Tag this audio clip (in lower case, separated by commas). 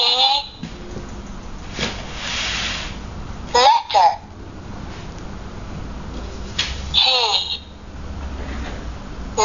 speech